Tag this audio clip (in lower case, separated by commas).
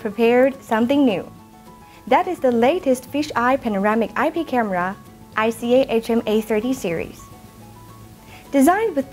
music, speech